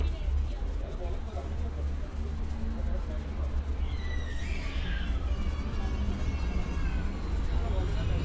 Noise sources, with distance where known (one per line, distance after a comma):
engine of unclear size, far
person or small group talking